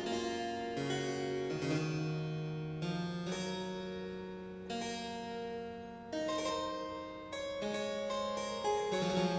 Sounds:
Music, Harpsichord

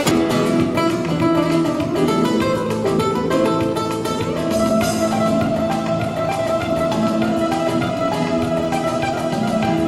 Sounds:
Music, Drum kit, Strum, Musical instrument, Drum, Guitar, Plucked string instrument, Bass guitar, Acoustic guitar

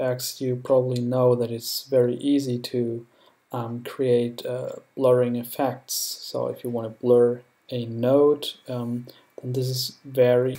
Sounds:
Speech

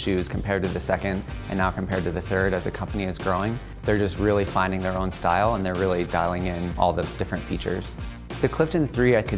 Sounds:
Music, Speech

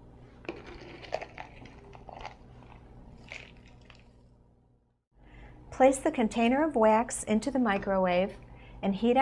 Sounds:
Speech

